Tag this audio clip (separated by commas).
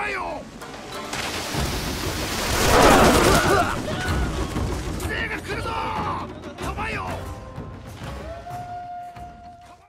Speech, Music